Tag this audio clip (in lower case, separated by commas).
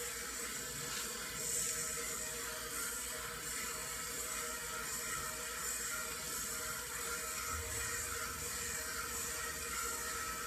music